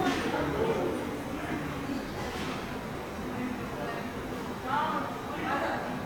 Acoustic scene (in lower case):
subway station